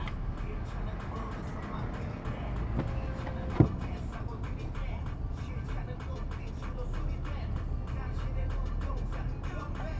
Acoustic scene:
car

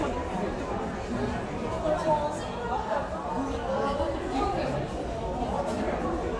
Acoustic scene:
crowded indoor space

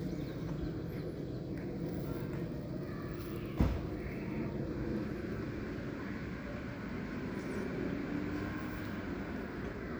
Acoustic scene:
residential area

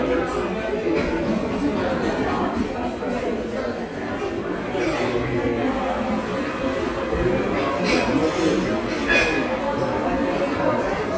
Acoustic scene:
crowded indoor space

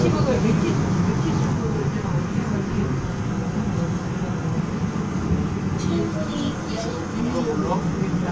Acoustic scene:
subway train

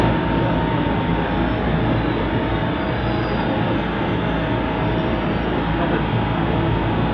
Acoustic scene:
subway train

